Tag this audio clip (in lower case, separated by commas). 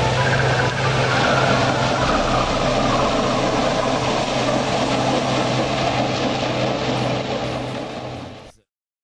music, vehicle, outside, rural or natural